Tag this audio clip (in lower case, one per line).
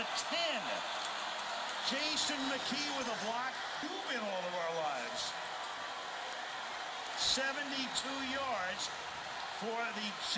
speech